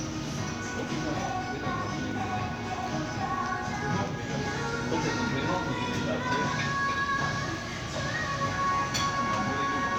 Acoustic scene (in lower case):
crowded indoor space